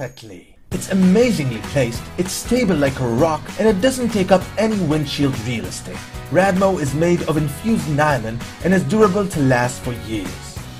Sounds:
speech, music

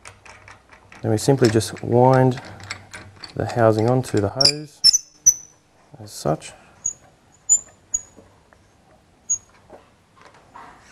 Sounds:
speech, inside a small room

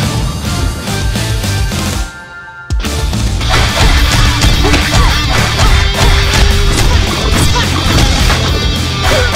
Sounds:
music, theme music

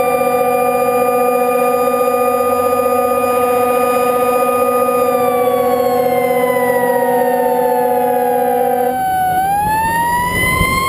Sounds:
emergency vehicle, fire truck (siren), siren

